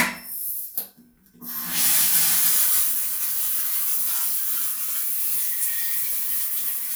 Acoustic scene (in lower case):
restroom